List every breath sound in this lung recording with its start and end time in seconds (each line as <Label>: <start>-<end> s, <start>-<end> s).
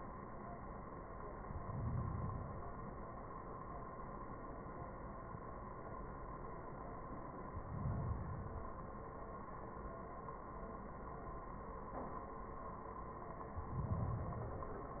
Inhalation: 1.50-2.84 s, 7.48-8.81 s, 13.54-14.88 s